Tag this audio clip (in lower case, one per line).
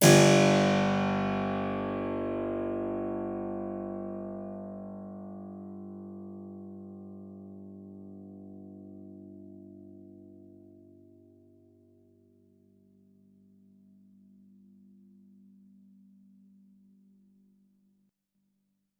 musical instrument
music
keyboard (musical)